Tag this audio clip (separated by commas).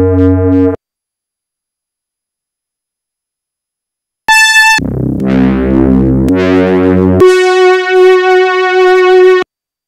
Ping, Sound effect